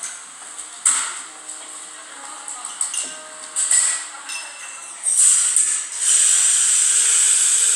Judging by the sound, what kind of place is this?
cafe